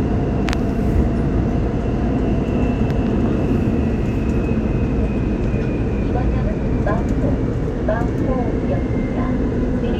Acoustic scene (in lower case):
subway train